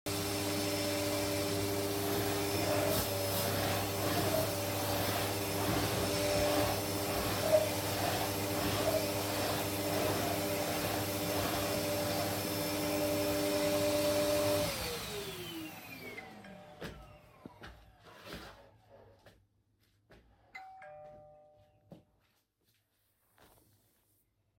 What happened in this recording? Turn on the vaccum cleaner , then hears door bell and turns it off